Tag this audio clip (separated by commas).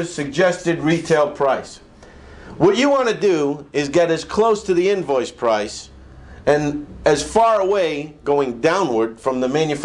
Speech